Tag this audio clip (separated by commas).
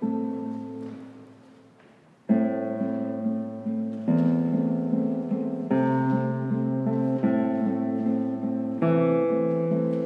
Acoustic guitar, Guitar, Music, Musical instrument